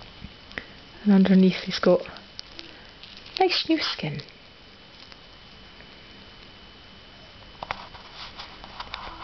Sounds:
Speech, inside a small room

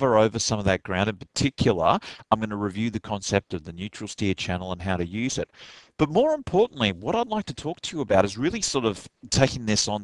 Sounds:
Speech

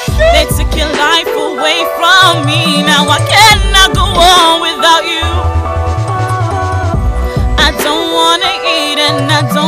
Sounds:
Music

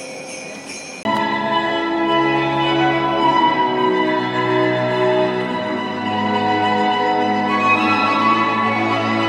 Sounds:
Music

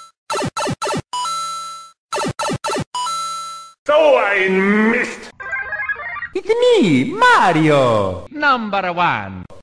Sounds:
Speech

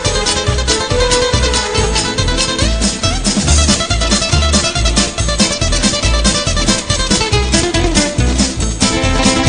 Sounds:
Music

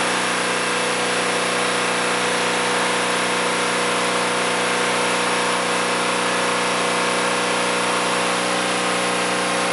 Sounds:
Medium engine (mid frequency), Engine

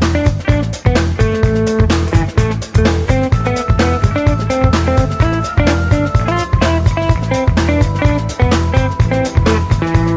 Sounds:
Music

